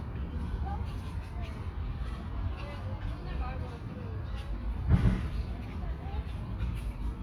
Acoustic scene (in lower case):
park